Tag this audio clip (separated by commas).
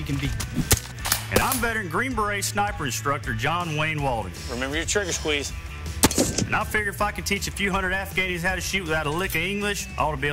Speech, Music